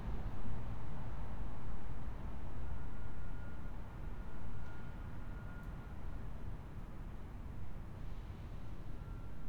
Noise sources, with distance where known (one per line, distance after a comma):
background noise